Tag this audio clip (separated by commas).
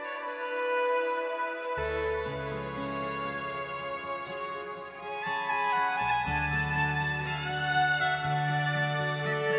Tender music, Theme music, Music